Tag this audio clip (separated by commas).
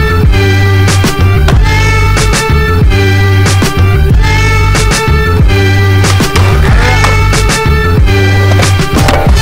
Music, Skateboard, Speech